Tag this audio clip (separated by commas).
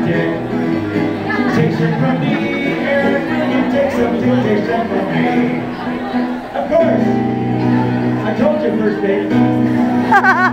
Music, Speech